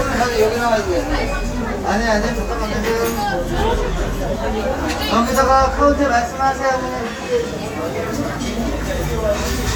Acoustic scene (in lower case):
restaurant